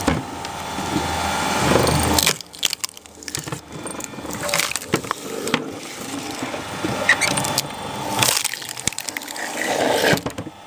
Wood is being cracked and split